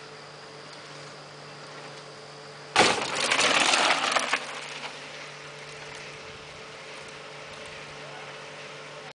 A large smack followed by rolling wheels on wood